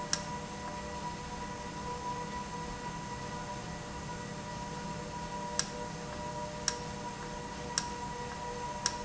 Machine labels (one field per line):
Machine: valve